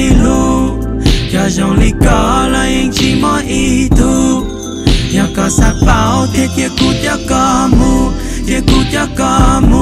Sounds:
music

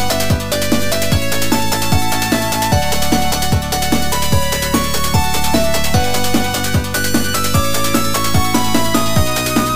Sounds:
music

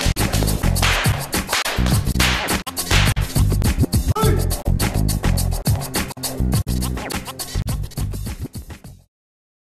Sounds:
whip

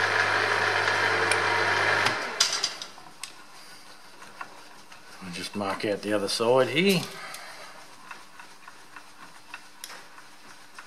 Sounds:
tools
speech

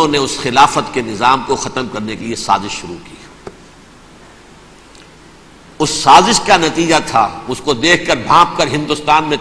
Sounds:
speech

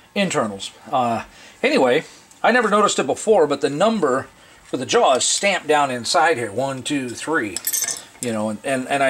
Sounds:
cutlery

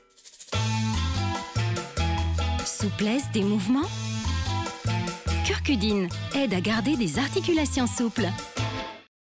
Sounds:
speech
music

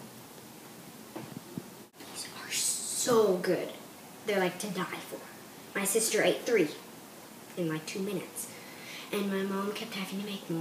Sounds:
inside a small room
speech
kid speaking

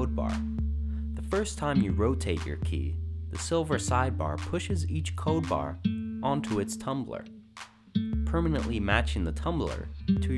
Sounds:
music
speech

